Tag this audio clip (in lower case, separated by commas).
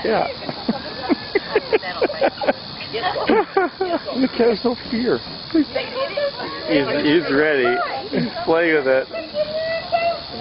speech